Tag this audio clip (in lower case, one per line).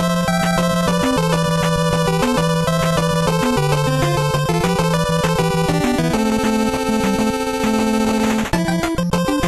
music
video game music